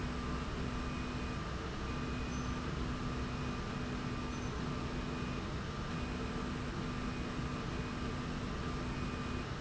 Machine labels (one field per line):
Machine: slide rail